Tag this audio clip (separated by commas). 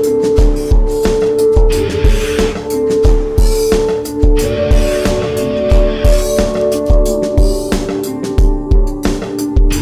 Music